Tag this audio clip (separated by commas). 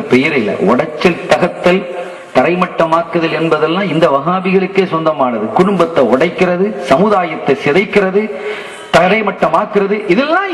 monologue, Speech